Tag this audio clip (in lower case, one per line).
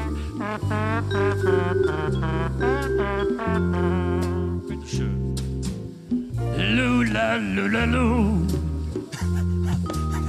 music
lullaby